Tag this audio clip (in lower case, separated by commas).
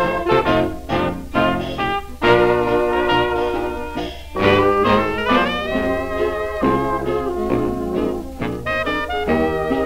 orchestra, music